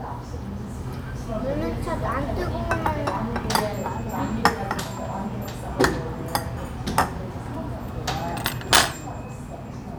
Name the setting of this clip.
restaurant